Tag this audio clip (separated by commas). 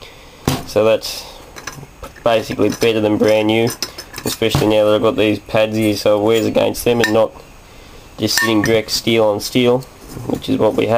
Speech